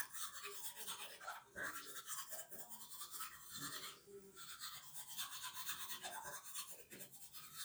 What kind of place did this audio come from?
restroom